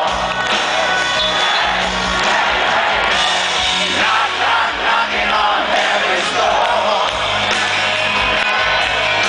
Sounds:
music

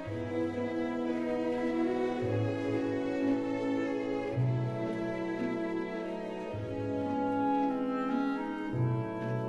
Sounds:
music, bowed string instrument, cello

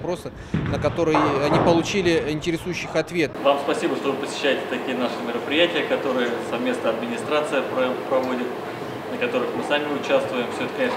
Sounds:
bowling impact

